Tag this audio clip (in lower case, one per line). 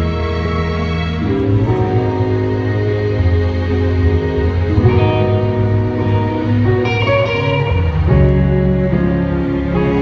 music